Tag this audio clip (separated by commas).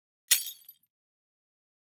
Glass, Shatter